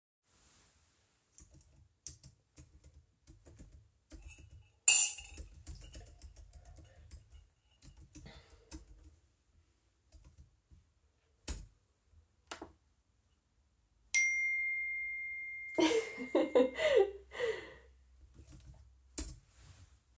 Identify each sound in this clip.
keyboard typing, cutlery and dishes, phone ringing